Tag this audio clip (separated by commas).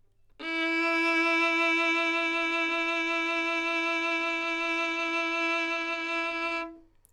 Music, Bowed string instrument, Musical instrument